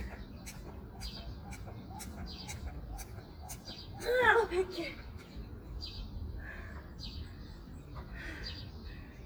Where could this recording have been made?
in a park